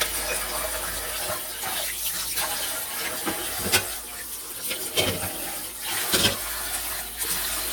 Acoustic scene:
kitchen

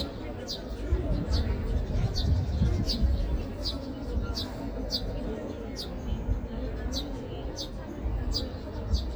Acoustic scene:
park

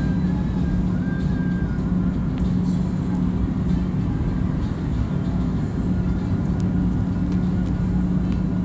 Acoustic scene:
bus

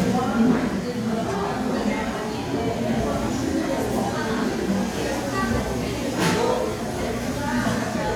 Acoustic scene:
crowded indoor space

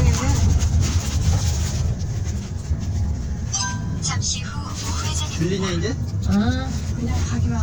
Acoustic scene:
car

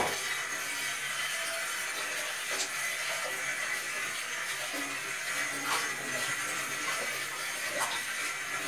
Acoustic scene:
kitchen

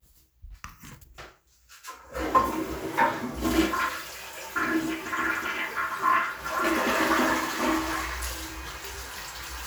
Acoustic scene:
restroom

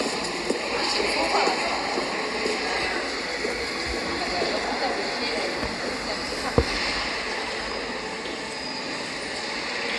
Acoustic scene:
subway station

